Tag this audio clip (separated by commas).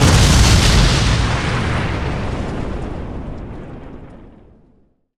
Explosion